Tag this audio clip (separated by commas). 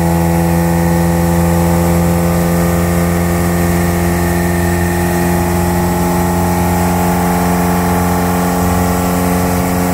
Motorboat, Water vehicle, Vehicle